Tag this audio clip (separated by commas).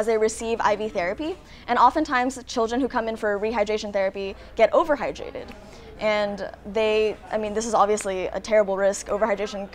Speech